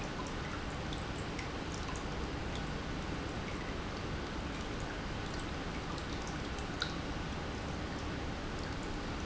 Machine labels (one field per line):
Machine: pump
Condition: normal